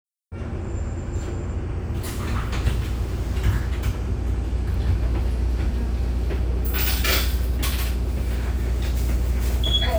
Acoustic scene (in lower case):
bus